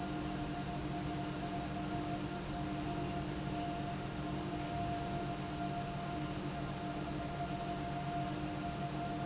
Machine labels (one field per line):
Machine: pump